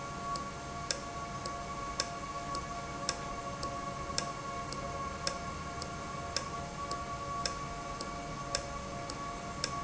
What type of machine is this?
valve